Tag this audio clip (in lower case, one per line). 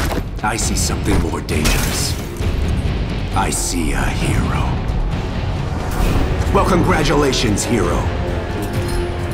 music
speech